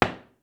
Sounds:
Door, Knock, Wood, Domestic sounds

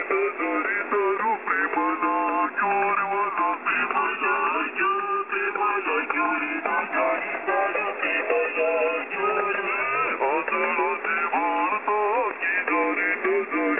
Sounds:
Human voice, Singing

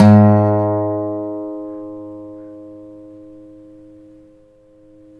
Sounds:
Musical instrument, Music, Plucked string instrument, Acoustic guitar, Guitar

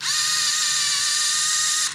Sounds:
Camera, Mechanisms

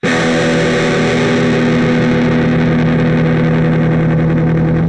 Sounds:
Plucked string instrument, Electric guitar, Guitar, Music, Musical instrument

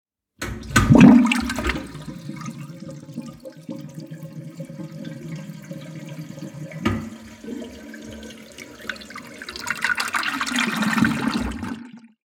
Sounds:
Liquid, Toilet flush, Domestic sounds

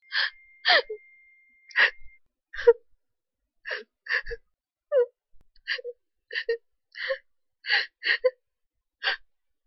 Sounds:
Human voice, sobbing

